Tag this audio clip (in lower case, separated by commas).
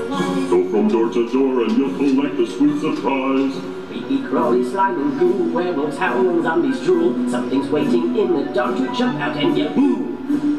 music, male singing